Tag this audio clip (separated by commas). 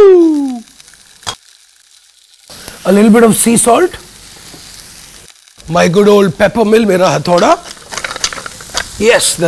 Sizzle